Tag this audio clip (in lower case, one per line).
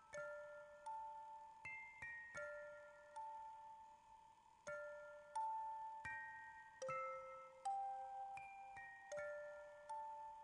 glockenspiel